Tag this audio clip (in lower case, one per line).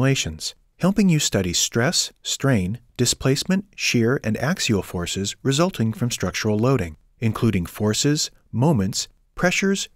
speech